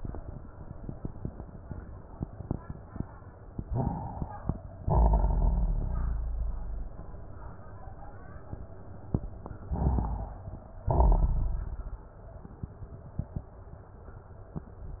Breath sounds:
3.64-4.78 s: inhalation
3.64-4.78 s: crackles
4.82-6.30 s: exhalation
4.82-6.30 s: crackles
9.64-10.78 s: inhalation
9.64-10.78 s: crackles
10.83-12.18 s: exhalation
10.83-12.18 s: crackles

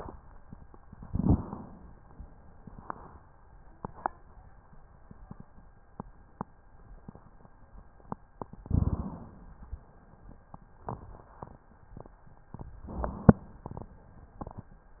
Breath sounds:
0.93-2.03 s: inhalation
1.10-1.37 s: rhonchi
8.64-9.63 s: inhalation
8.66-9.12 s: rhonchi
12.88-13.96 s: inhalation

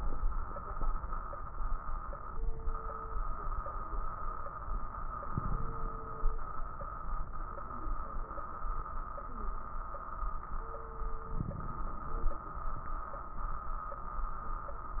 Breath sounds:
5.27-6.28 s: inhalation
5.27-6.28 s: crackles
11.38-12.40 s: inhalation
11.38-12.40 s: crackles

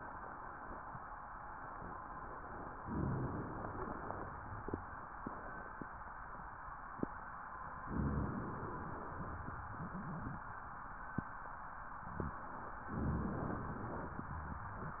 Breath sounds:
2.76-3.68 s: rhonchi
2.79-3.70 s: inhalation
3.72-5.10 s: exhalation
7.87-8.79 s: inhalation
7.87-8.79 s: rhonchi
8.79-10.61 s: exhalation
9.77-10.43 s: wheeze
12.91-13.65 s: inhalation
12.91-13.65 s: rhonchi

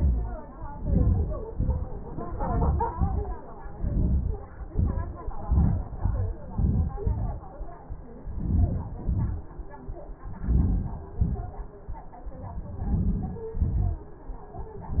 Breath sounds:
0.81-1.36 s: inhalation
1.57-1.98 s: exhalation
2.43-2.91 s: inhalation
3.02-3.32 s: exhalation
3.75-4.40 s: inhalation
4.71-5.18 s: exhalation
5.42-5.96 s: inhalation
6.01-6.40 s: exhalation
6.55-6.97 s: inhalation
7.08-7.40 s: exhalation
8.41-9.01 s: inhalation
9.14-9.59 s: exhalation
10.47-11.12 s: inhalation
11.20-11.63 s: exhalation
12.93-13.49 s: inhalation
13.62-14.07 s: exhalation

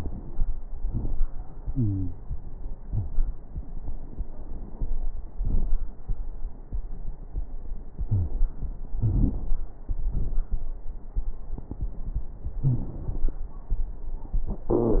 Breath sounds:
1.68-2.17 s: wheeze
2.86-3.11 s: wheeze
8.12-8.37 s: wheeze
12.61-12.86 s: wheeze
14.72-15.00 s: wheeze

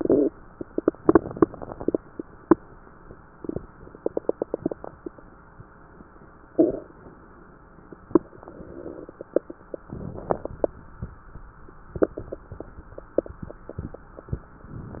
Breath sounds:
9.80-11.38 s: inhalation

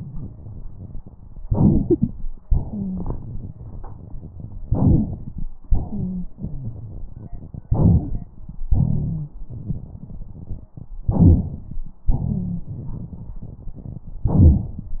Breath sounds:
1.42-2.28 s: inhalation
1.89-2.12 s: wheeze
2.47-3.51 s: exhalation
2.70-3.05 s: wheeze
4.65-5.50 s: inhalation
4.70-5.07 s: wheeze
5.89-6.24 s: wheeze
6.37-7.06 s: wheeze
7.68-8.41 s: inhalation
7.70-8.11 s: wheeze
8.70-9.29 s: rhonchi
8.70-9.40 s: exhalation
11.10-11.82 s: inhalation
12.05-12.59 s: rhonchi
12.07-13.37 s: exhalation
14.26-14.85 s: inhalation

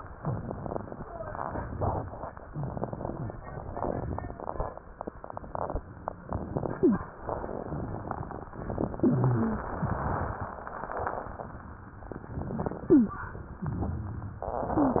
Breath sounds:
6.77-7.04 s: wheeze
8.99-9.71 s: wheeze
12.90-13.21 s: wheeze
14.78-15.00 s: wheeze

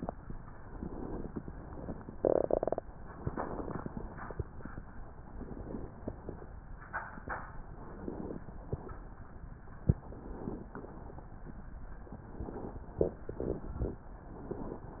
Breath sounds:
0.68-1.41 s: inhalation
3.21-3.93 s: inhalation
5.33-6.05 s: inhalation
7.74-8.46 s: inhalation
10.00-10.72 s: inhalation
12.22-12.94 s: inhalation

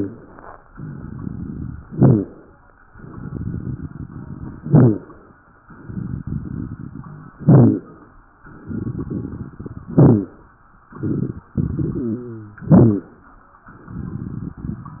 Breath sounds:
0.68-1.77 s: exhalation
0.68-1.77 s: crackles
1.86-2.36 s: inhalation
1.86-2.36 s: wheeze
2.96-4.57 s: exhalation
2.96-4.57 s: crackles
4.59-5.10 s: inhalation
4.59-5.10 s: wheeze
5.69-7.31 s: exhalation
5.69-7.31 s: crackles
7.42-7.92 s: inhalation
7.42-7.92 s: wheeze
8.50-9.89 s: exhalation
8.50-9.89 s: crackles
9.89-10.54 s: inhalation
9.89-10.54 s: wheeze
10.95-12.33 s: exhalation
10.95-12.33 s: crackles
11.92-12.57 s: wheeze
12.60-13.25 s: inhalation
12.60-13.25 s: wheeze
13.70-15.00 s: exhalation
13.70-15.00 s: crackles

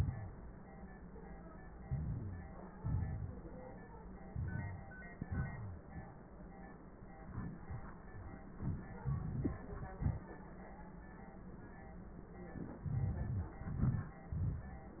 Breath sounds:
1.81-2.74 s: inhalation
2.75-3.85 s: exhalation
4.27-5.14 s: inhalation
5.16-6.22 s: exhalation
5.44-5.81 s: wheeze

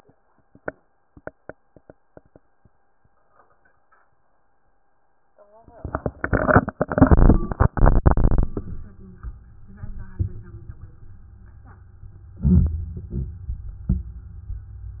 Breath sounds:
12.42-13.11 s: inhalation
13.16-13.84 s: exhalation

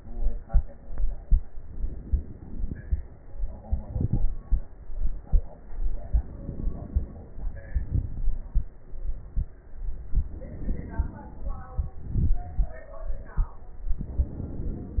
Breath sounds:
1.50-3.00 s: inhalation
3.71-4.42 s: exhalation
3.71-4.42 s: crackles
6.07-7.63 s: inhalation
6.11-7.61 s: inhalation
7.65-8.73 s: exhalation
7.65-8.73 s: crackles
10.26-11.79 s: inhalation
11.80-12.91 s: exhalation
11.80-12.91 s: crackles

